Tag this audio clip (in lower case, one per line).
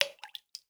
drip
liquid